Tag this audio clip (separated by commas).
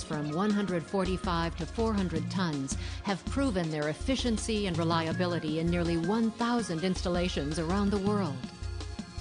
Speech, Music